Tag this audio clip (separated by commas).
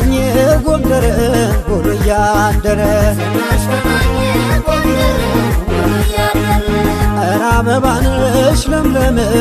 Music, Music of Africa